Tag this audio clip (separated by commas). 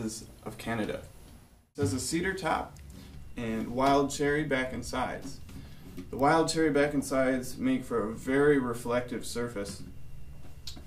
Speech